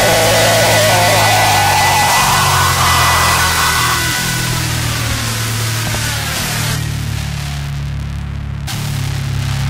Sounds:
hum

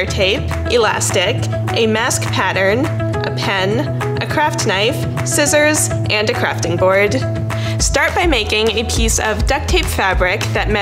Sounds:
music
speech

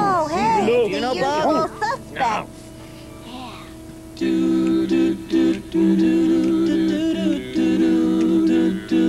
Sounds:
music
speech

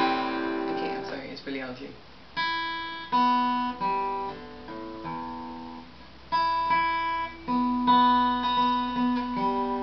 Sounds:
speech
plucked string instrument
musical instrument
guitar
music

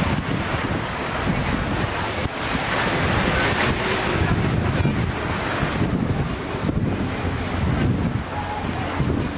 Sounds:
speech

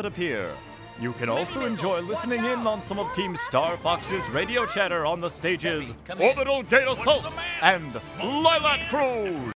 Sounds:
music
speech

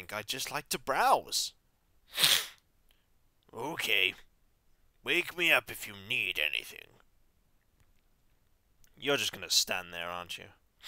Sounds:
speech

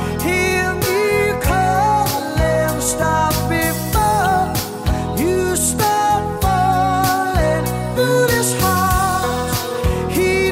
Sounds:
music

